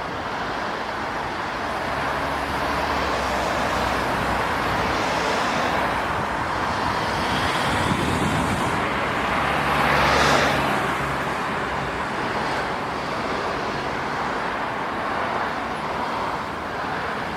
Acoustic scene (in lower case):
street